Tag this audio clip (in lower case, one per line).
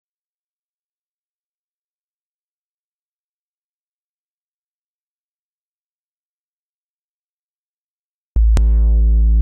silence